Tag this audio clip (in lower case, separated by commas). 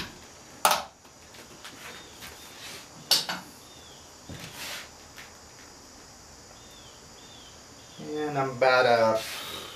speech, wood